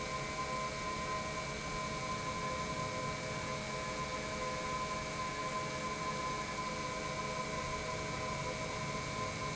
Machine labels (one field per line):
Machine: pump